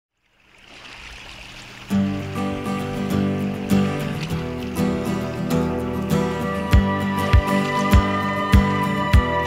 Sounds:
stream

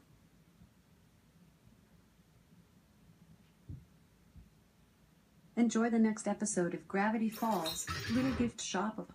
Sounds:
music, speech

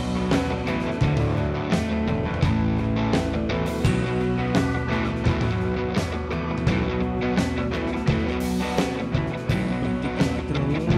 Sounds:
music

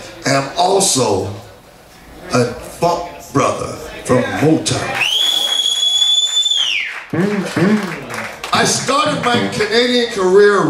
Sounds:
speech

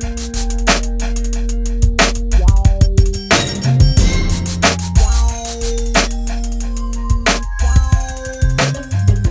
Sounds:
hip hop music, music

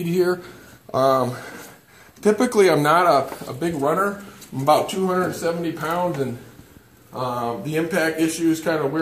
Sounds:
speech, inside a small room

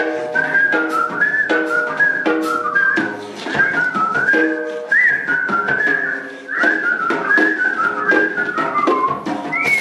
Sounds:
people whistling, whistling

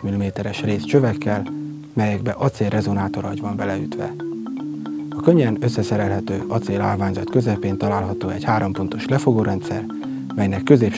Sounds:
speech, music, xylophone

